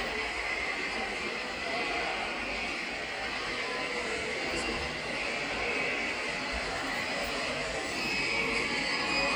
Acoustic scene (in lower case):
subway station